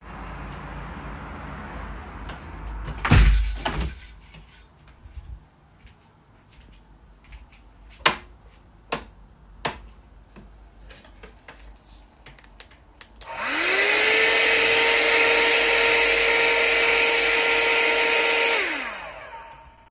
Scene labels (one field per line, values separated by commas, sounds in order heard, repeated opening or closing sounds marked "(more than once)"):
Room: living room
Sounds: window, footsteps, light switch, vacuum cleaner